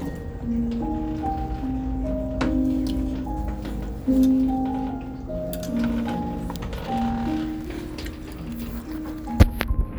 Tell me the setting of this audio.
restaurant